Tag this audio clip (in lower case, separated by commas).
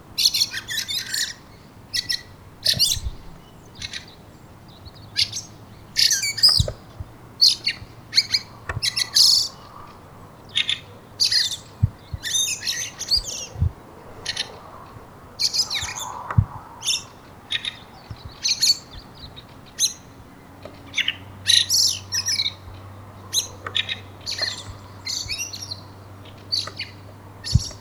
wild animals, animal, bird, bird call